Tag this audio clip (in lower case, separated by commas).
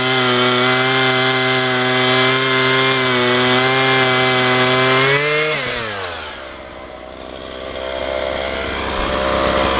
power tool, tools